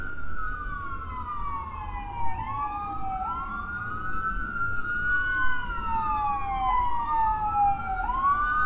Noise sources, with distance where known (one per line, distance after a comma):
siren, far